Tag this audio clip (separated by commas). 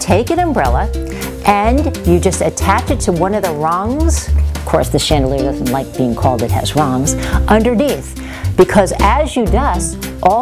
Speech, Music